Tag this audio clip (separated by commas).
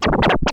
Musical instrument, Scratching (performance technique), Music